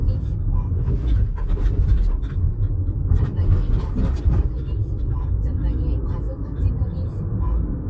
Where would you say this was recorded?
in a car